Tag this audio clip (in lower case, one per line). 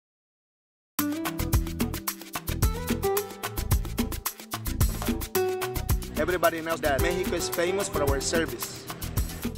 music
speech